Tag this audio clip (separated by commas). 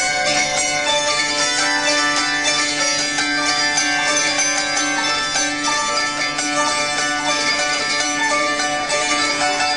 Zither, Music